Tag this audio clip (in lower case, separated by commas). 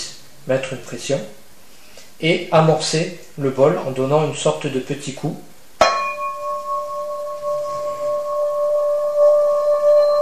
singing bowl